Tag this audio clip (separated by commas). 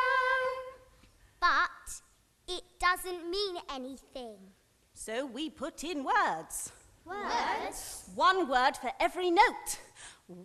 Speech